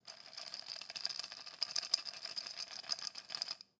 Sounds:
Rattle

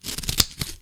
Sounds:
Scissors, Domestic sounds

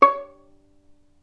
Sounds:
Bowed string instrument, Music, Musical instrument

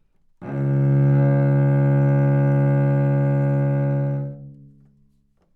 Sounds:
Musical instrument, Bowed string instrument, Music

